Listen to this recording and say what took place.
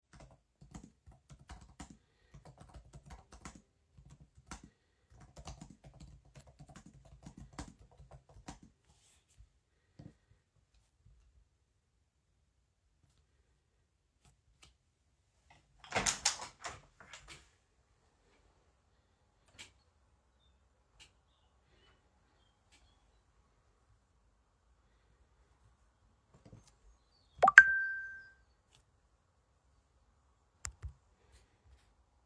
I started typing on the laptop. I then opened the window and received a notification.